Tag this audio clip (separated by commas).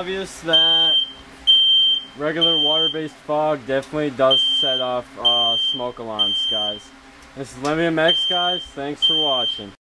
Speech, Buzzer